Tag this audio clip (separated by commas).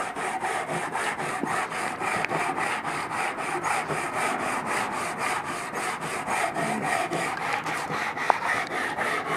Car, Vehicle